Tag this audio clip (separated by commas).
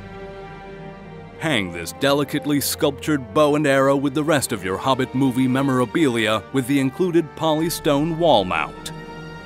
Music, Speech